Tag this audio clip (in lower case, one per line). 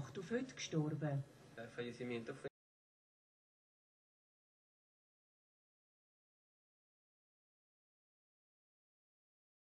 speech